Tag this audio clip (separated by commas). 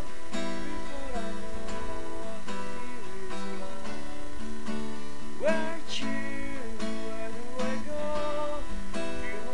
Music